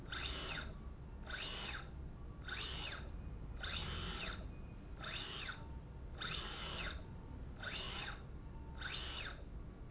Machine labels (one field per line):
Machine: slide rail